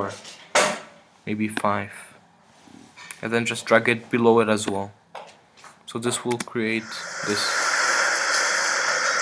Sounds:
speech, inside a small room

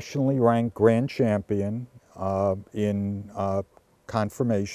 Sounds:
speech

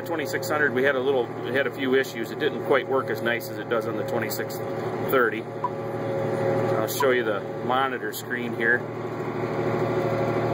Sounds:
speech, vehicle

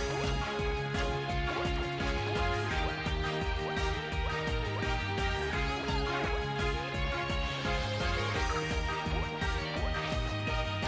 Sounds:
music

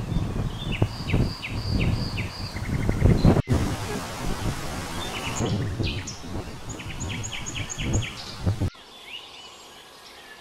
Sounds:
bird vocalization, tweet, environmental noise

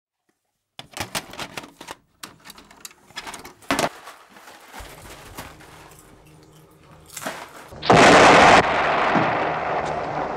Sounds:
inside a small room

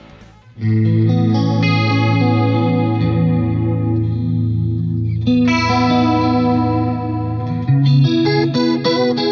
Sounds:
effects unit, music, echo, musical instrument, bass guitar, plucked string instrument

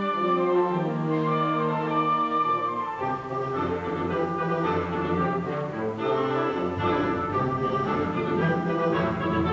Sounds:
music

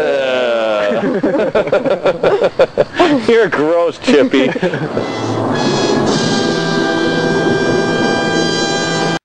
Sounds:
music, speech

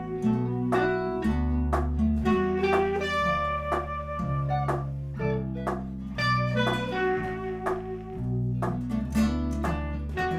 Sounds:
music, saxophone

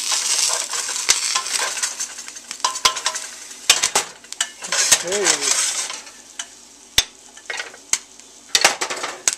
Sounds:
popping popcorn

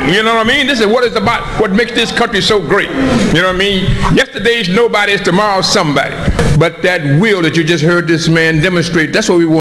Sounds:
man speaking, speech

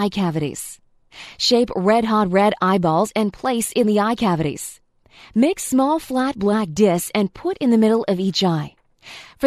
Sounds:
speech

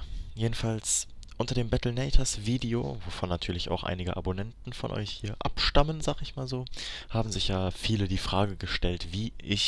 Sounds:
speech

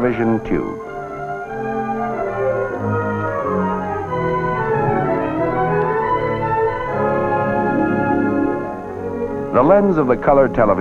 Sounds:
television, speech, music

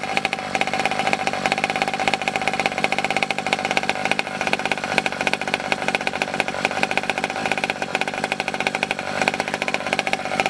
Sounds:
vehicle, chainsaw

